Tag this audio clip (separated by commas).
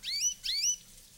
bird call, Wild animals, Bird, Animal, Chirp